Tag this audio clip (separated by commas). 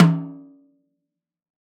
Musical instrument, Music, Snare drum, Percussion, Drum